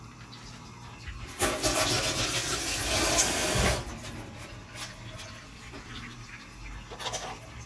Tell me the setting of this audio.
kitchen